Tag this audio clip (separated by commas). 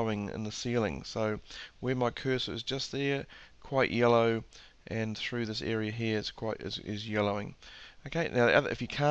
Speech